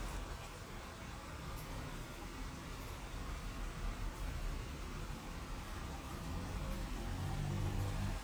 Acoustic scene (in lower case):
residential area